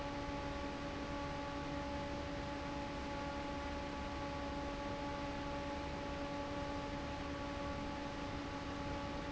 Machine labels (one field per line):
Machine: fan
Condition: normal